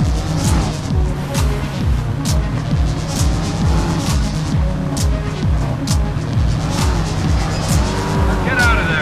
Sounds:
Speech, Music

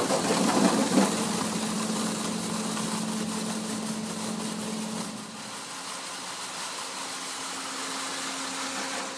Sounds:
Water

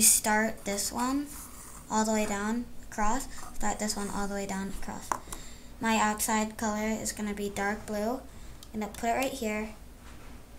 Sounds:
Speech

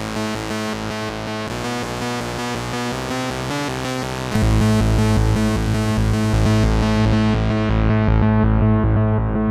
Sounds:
Music, Sampler

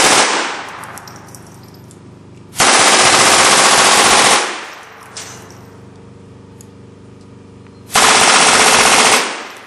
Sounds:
machine gun shooting

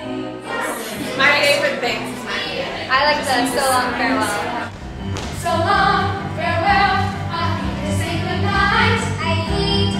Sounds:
Music, Speech

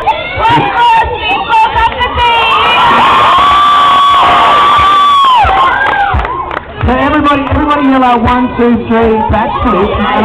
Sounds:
Speech, outside, urban or man-made

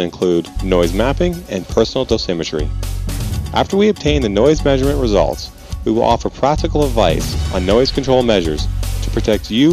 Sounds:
Speech, Music

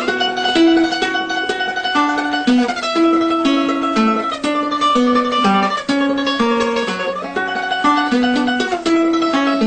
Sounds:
Guitar, Musical instrument, Acoustic guitar, Music, Plucked string instrument, Ukulele

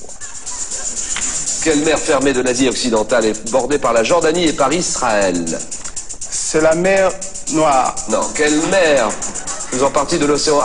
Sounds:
Music, Speech

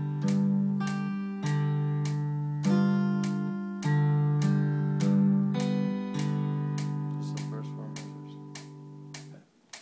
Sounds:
Electric guitar, Acoustic guitar, Music, Guitar, Musical instrument, Plucked string instrument

